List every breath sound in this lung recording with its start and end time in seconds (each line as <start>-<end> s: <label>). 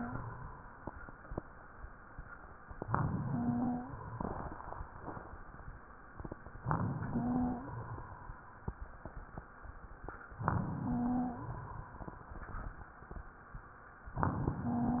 2.79-3.92 s: inhalation
3.21-3.90 s: wheeze
6.59-7.71 s: inhalation
7.09-7.69 s: wheeze
10.42-11.55 s: inhalation
10.86-11.46 s: wheeze
14.15-15.00 s: inhalation
14.64-15.00 s: wheeze